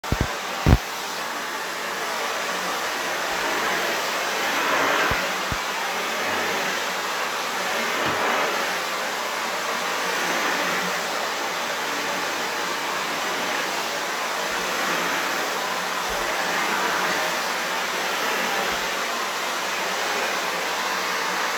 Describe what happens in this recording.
For recording i placed the phone on the table and then i started vacuuming.